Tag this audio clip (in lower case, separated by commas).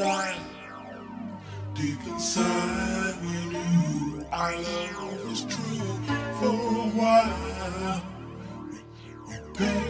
music